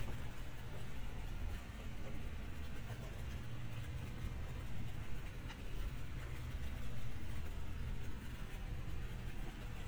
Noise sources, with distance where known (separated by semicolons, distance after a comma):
background noise